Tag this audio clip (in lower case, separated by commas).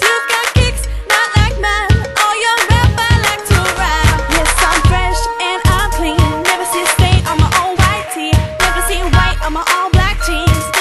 music, pop music